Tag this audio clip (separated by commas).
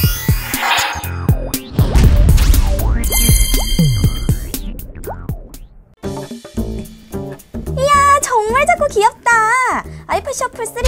Speech, Shuffle, Music